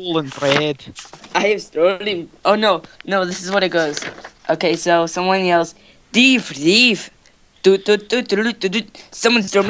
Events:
0.0s-0.7s: child speech
0.0s-9.6s: background noise
0.2s-0.5s: scrape
0.4s-0.5s: generic impact sounds
0.9s-1.3s: generic impact sounds
1.3s-2.2s: child speech
2.4s-2.8s: child speech
2.8s-2.8s: tick
2.8s-3.0s: breathing
3.0s-3.1s: tick
3.1s-4.0s: child speech
3.9s-4.3s: generic impact sounds
4.4s-5.7s: child speech
4.7s-4.8s: tick
5.7s-5.9s: breathing
6.1s-7.1s: child speech
7.2s-7.3s: tick
7.6s-7.7s: human voice
7.9s-7.9s: human voice
8.1s-8.2s: human voice
8.3s-8.5s: human voice
8.6s-8.8s: human voice
8.9s-9.1s: breathing
9.1s-9.6s: child speech

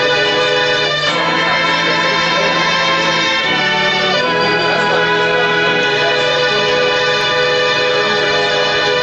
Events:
0.0s-9.0s: music
8.0s-8.7s: speech noise

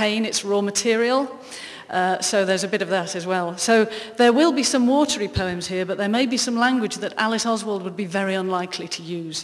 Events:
0.0s-1.3s: woman speaking
0.0s-9.4s: background noise
1.5s-1.9s: breathing
1.9s-3.9s: woman speaking
3.9s-4.1s: breathing
4.2s-9.4s: woman speaking
8.4s-8.5s: tick

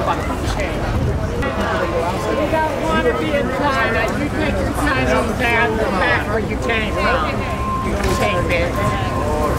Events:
0.0s-8.7s: conversation
0.0s-9.5s: hubbub
0.0s-9.5s: mechanisms
0.0s-9.5s: wind
4.0s-4.1s: tap
8.0s-8.2s: generic impact sounds
8.0s-8.7s: woman speaking

